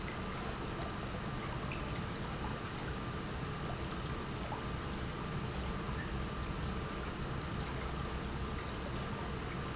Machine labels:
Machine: pump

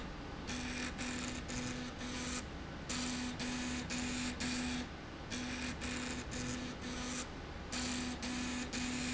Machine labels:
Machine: slide rail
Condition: abnormal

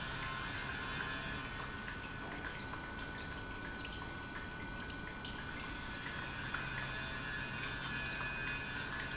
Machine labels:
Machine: pump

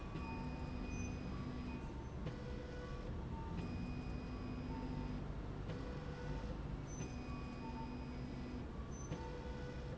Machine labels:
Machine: slide rail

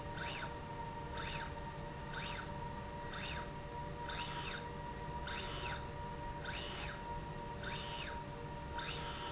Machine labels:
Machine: slide rail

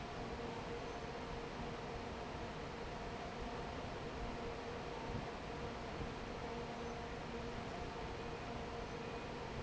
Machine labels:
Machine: fan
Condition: normal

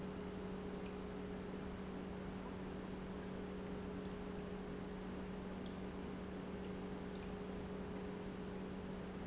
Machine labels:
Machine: pump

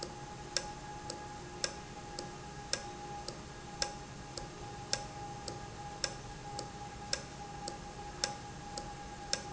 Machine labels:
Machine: valve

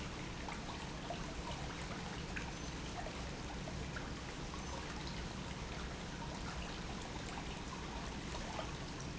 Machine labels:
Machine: pump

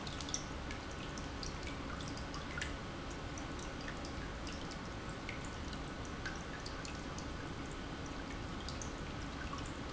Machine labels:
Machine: pump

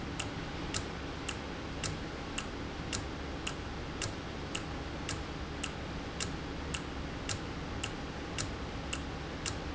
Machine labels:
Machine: valve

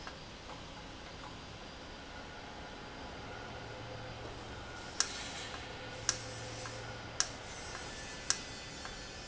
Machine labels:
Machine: valve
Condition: normal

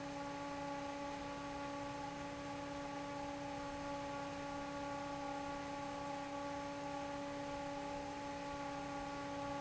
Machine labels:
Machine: fan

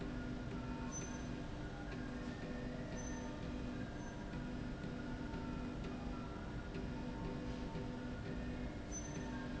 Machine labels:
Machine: slide rail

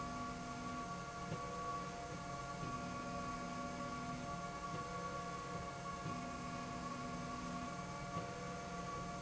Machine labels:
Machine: slide rail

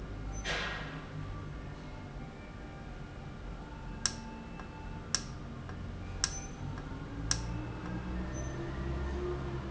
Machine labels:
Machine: valve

